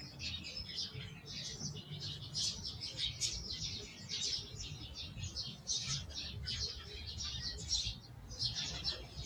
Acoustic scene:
park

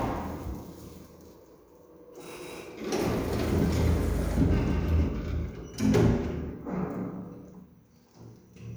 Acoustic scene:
elevator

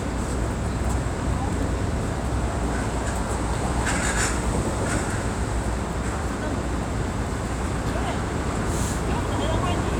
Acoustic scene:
street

